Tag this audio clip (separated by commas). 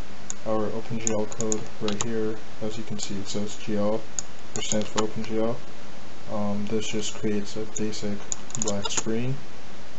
Speech